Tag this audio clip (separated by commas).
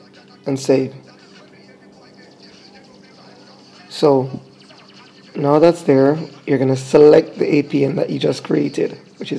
inside a small room, Speech